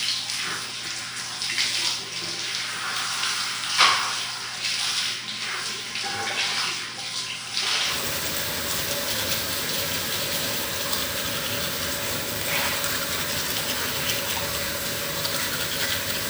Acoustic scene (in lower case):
restroom